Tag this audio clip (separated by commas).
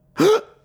Human voice, Respiratory sounds, Breathing, Gasp